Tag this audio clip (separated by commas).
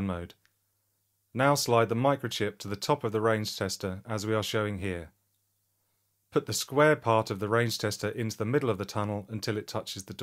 Speech